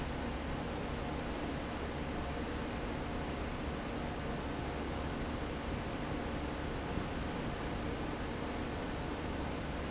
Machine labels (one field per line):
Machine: fan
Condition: abnormal